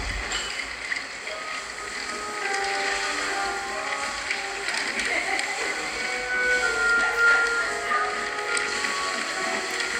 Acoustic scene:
cafe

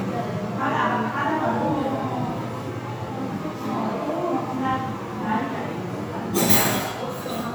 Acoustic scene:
crowded indoor space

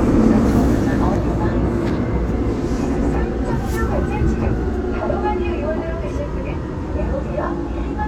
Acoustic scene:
subway train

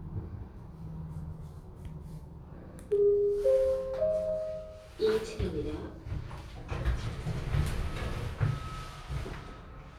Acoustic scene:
elevator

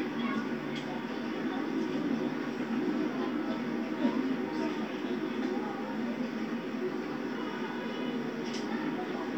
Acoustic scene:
park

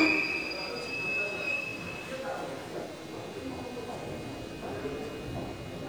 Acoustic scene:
subway station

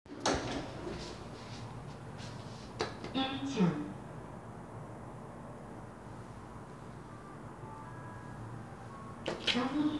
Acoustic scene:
elevator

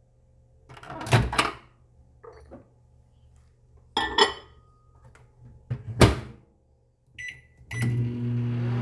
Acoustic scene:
kitchen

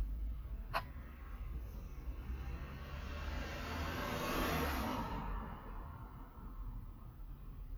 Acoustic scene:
residential area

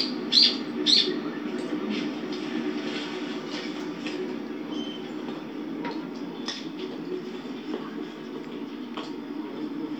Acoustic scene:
park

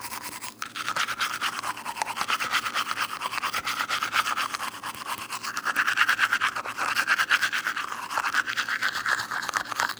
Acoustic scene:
restroom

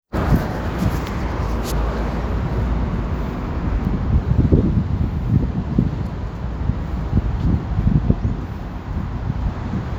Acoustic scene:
street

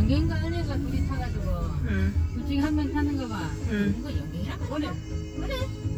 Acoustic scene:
car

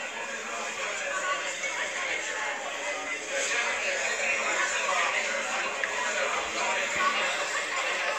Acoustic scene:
crowded indoor space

